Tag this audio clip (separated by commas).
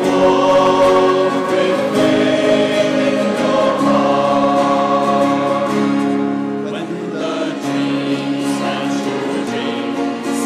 Music